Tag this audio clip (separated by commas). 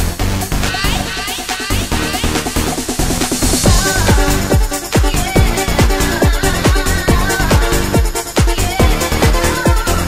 Music